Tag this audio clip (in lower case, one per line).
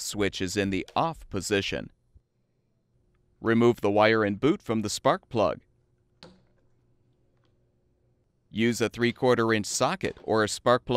speech